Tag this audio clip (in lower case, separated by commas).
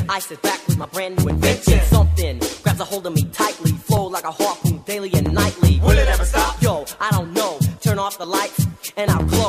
music